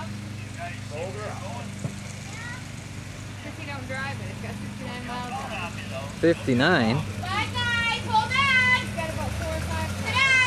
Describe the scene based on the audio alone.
People are talking and a car passes by